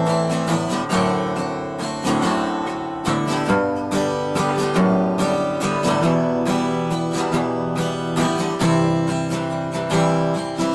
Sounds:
musical instrument
guitar
acoustic guitar
music

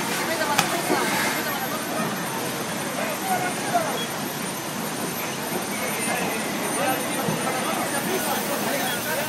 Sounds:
speech

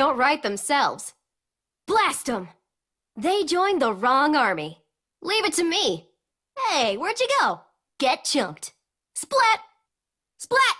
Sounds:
speech

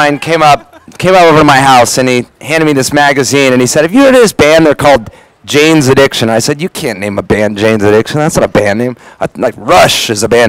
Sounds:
speech

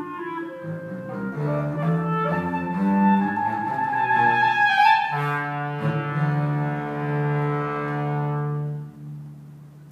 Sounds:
clarinet
woodwind instrument
musical instrument
music

